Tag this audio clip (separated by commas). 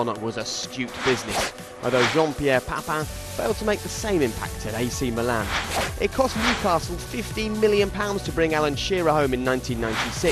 Speech, Music